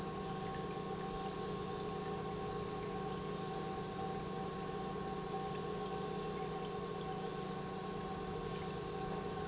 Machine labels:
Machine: pump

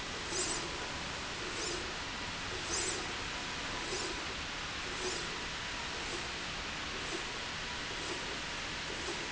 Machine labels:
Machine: slide rail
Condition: normal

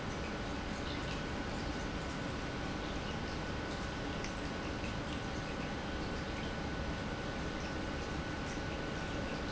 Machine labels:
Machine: pump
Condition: normal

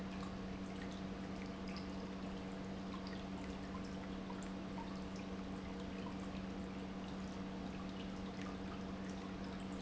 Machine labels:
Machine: pump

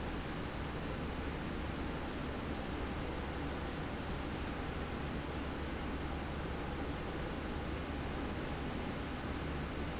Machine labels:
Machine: slide rail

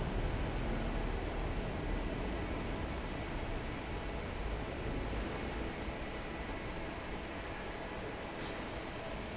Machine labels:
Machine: fan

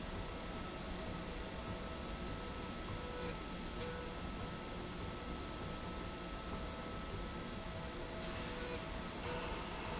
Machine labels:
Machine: slide rail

